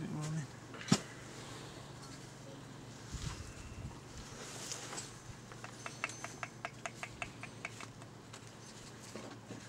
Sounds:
speech

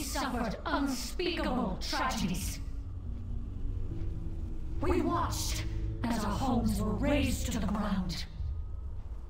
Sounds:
narration, speech synthesizer, speech, woman speaking

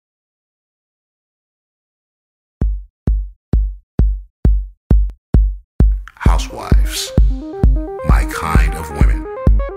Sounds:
speech, music, inside a small room

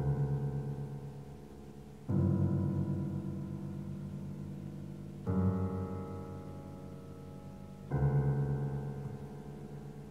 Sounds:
piano, keyboard (musical), musical instrument

